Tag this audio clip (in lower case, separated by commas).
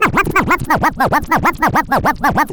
scratching (performance technique), music, musical instrument